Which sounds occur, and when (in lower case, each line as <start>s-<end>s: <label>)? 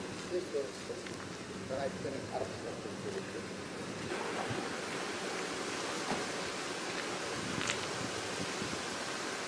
0.0s-9.4s: motor vehicle (road)
0.0s-9.4s: rustle
0.3s-1.0s: male speech
1.0s-1.3s: generic impact sounds
1.7s-3.4s: male speech
3.1s-3.2s: generic impact sounds
4.4s-4.6s: generic impact sounds
6.0s-6.2s: generic impact sounds
7.4s-8.0s: wind noise (microphone)
7.5s-7.7s: generic impact sounds
8.3s-9.0s: wind noise (microphone)